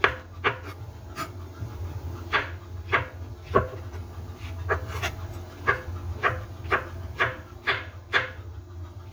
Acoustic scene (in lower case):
kitchen